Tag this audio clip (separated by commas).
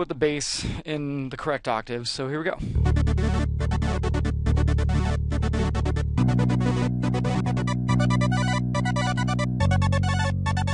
Soundtrack music, Cacophony